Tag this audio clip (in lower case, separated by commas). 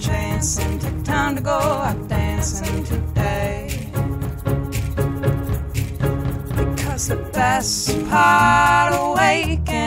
music